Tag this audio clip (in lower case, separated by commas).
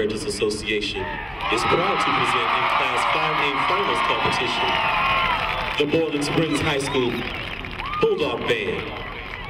speech